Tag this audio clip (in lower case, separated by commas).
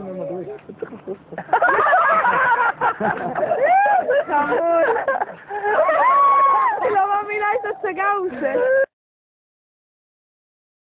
speech